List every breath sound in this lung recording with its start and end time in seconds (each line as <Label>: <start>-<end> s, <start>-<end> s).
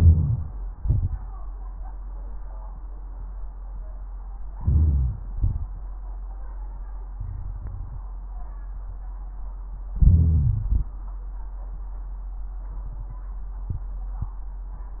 Inhalation: 0.00-0.78 s, 4.50-5.28 s, 9.93-10.93 s
Exhalation: 0.77-1.54 s, 5.30-5.95 s
Crackles: 0.77-1.54 s, 4.50-5.28 s, 5.30-5.95 s, 9.93-10.93 s